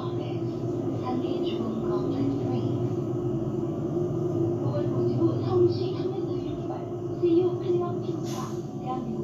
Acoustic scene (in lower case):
bus